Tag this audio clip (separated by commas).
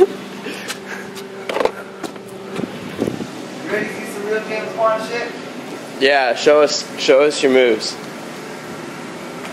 outside, urban or man-made, Vehicle, Speech